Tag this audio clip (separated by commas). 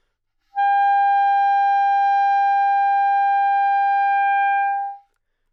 Music, Musical instrument, woodwind instrument